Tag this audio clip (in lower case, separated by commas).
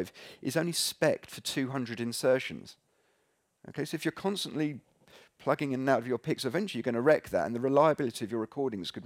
speech